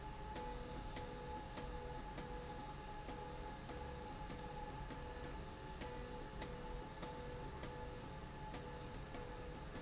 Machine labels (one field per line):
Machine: slide rail